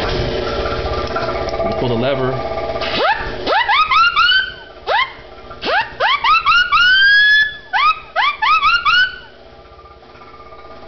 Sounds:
speech

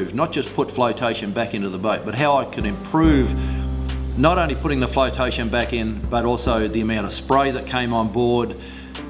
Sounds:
speech
music

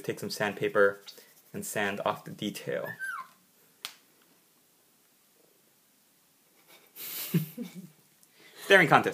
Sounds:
speech
inside a small room

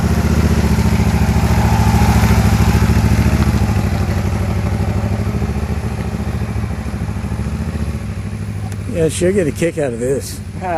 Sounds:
vehicle
motorcycle
speech

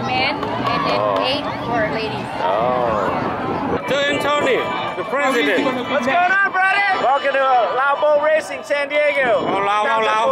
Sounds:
speech

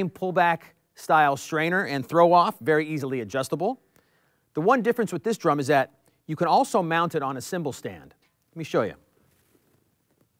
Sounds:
speech

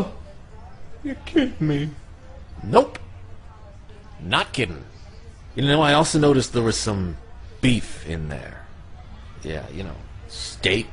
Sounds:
speech

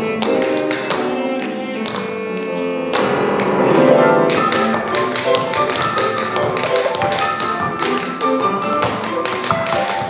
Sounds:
tap dancing

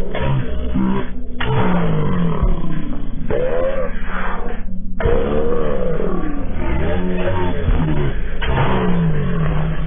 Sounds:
inside a large room or hall

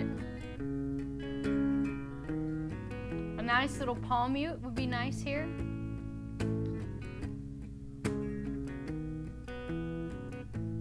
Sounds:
guitar
strum
musical instrument
music
plucked string instrument
speech

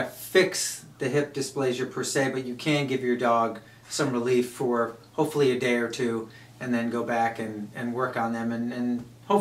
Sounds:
speech

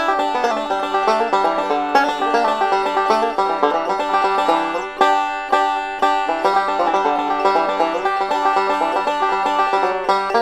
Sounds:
independent music
music

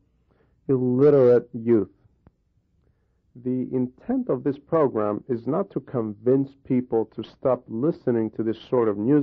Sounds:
speech

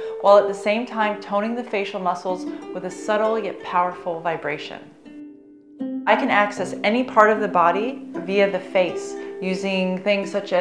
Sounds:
music
speech

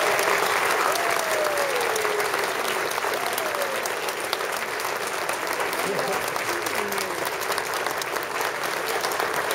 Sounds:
applause
speech
people clapping

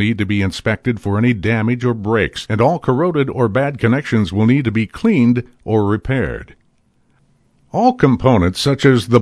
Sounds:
speech

